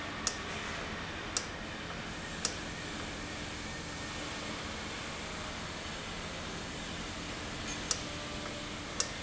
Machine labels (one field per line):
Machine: valve